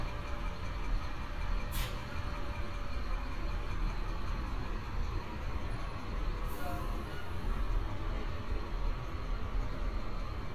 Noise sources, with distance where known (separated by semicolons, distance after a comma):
large-sounding engine, near